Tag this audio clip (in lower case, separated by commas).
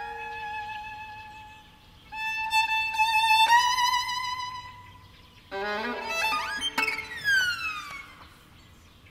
musical instrument, fiddle, music